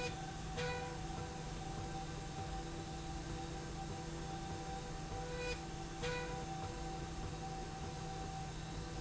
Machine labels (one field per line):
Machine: slide rail